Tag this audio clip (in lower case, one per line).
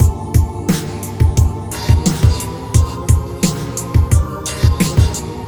percussion
drum kit
musical instrument
music